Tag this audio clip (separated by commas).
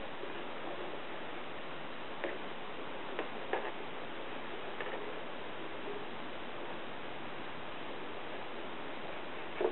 Rustle